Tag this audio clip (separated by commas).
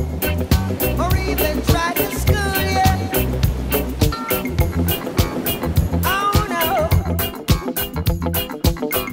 Funk